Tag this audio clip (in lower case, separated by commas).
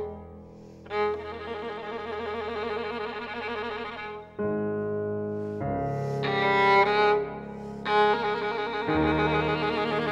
bowed string instrument, fiddle